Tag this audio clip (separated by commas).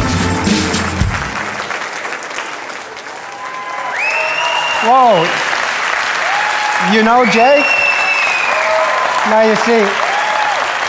Speech, Music, Applause